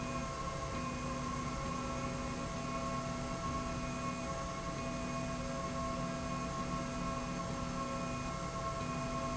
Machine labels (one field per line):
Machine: slide rail